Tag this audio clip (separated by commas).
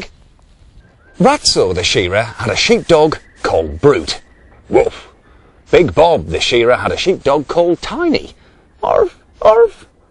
Speech